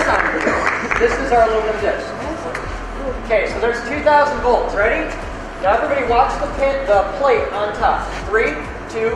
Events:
[0.01, 9.15] music
[0.90, 2.59] male speech
[3.28, 5.18] male speech
[5.62, 8.69] male speech
[8.87, 9.15] male speech

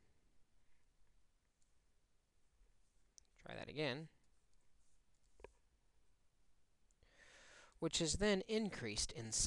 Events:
[0.00, 9.45] background noise
[0.62, 0.90] surface contact
[1.56, 1.71] clicking
[3.16, 3.29] clicking
[3.38, 4.21] male speech
[4.48, 4.64] clicking
[4.75, 5.00] surface contact
[5.36, 5.61] generic impact sounds
[7.05, 7.77] breathing
[7.80, 9.45] male speech
[8.94, 9.06] generic impact sounds

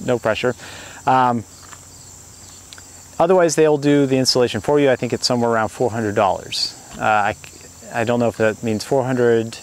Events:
[0.00, 0.52] male speech
[0.00, 9.62] cricket
[0.00, 9.62] wind
[0.51, 1.02] breathing
[1.03, 1.43] male speech
[1.58, 1.75] human sounds
[2.68, 2.80] human sounds
[3.16, 6.69] male speech
[6.96, 7.33] male speech
[7.39, 7.51] human sounds
[7.84, 9.56] male speech

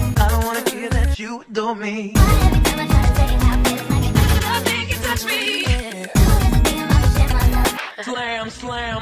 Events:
[0.00, 1.15] music
[0.14, 2.13] male singing
[2.13, 9.01] music
[2.15, 9.01] female singing

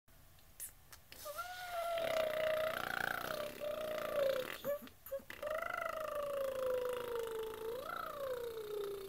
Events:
[0.04, 9.05] mechanisms
[0.32, 0.41] human sounds
[0.55, 0.67] human sounds
[0.85, 0.94] human sounds
[1.10, 4.86] human sounds
[5.03, 9.05] human sounds

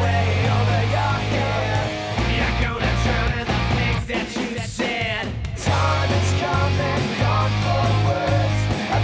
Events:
[0.00, 9.03] male singing
[0.00, 9.03] music

